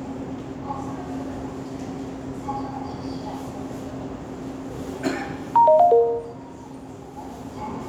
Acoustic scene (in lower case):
subway station